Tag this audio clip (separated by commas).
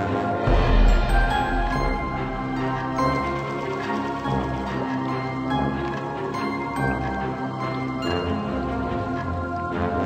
Music